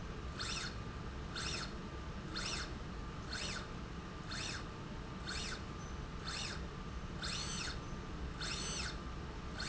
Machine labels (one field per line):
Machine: slide rail